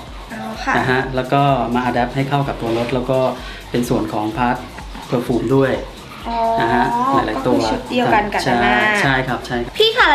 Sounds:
Music, Speech

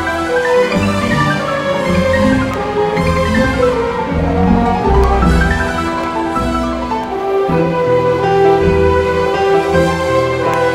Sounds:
Mallet percussion, Marimba, Glockenspiel

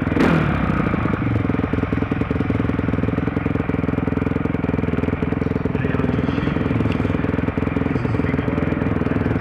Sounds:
Speech

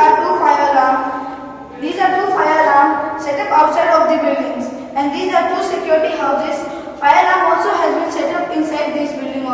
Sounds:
Speech

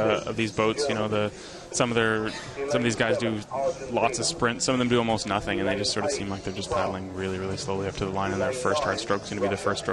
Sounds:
Speech

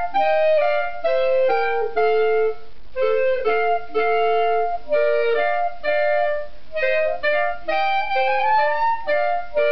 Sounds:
Music, Clarinet, Wind instrument, Musical instrument

